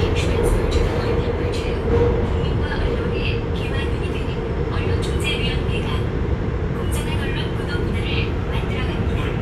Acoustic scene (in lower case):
subway train